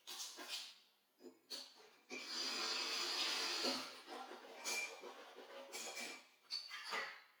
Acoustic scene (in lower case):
restroom